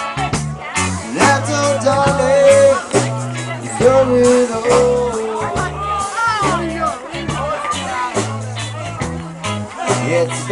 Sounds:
music, speech

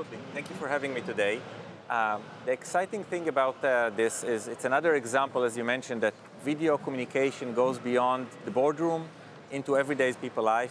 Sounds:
speech

